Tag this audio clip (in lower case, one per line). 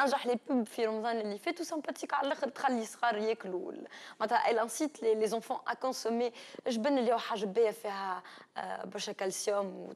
speech